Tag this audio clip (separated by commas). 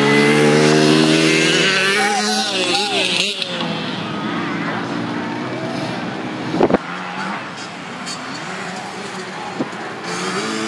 Speech, Vehicle, Motorcycle